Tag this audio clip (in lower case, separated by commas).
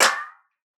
hands, clapping